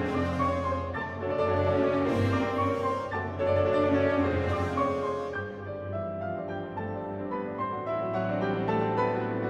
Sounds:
music
orchestra

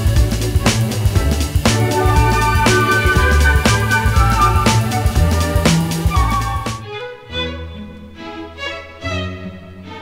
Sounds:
soundtrack music
music

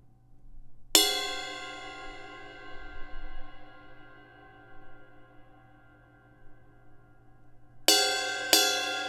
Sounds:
reverberation
music

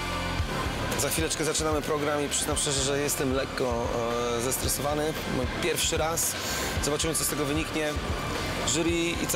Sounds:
music
speech

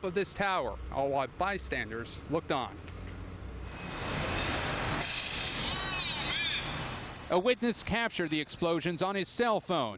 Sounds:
speech

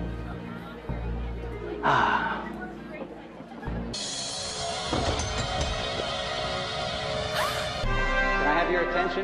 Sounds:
man speaking
speech
female speech
narration
music

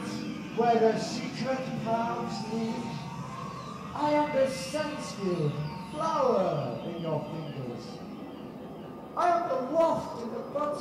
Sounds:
speech

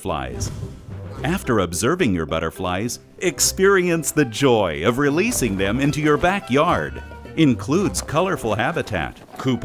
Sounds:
speech

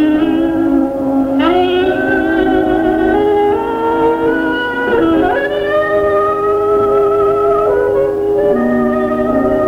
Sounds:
jazz
music

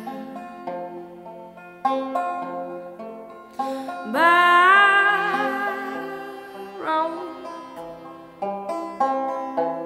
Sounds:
music

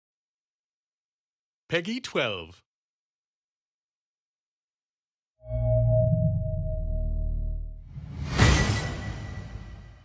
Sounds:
speech
music

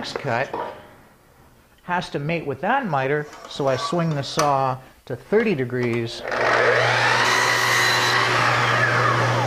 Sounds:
power tool
tools

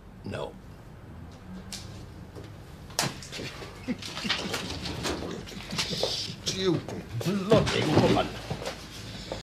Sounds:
speech

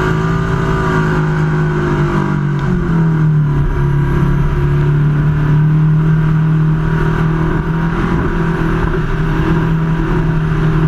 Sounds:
speedboat
boat
vehicle

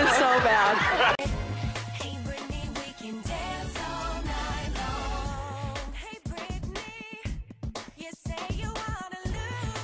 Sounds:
music
speech

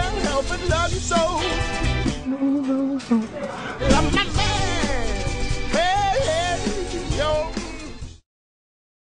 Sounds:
music

